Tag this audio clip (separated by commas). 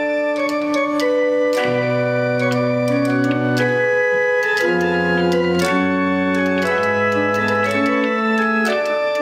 Piano, Electric piano, Keyboard (musical), Organ, Electronic organ